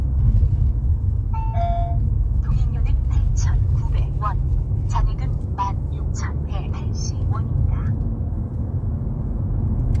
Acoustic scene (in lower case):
car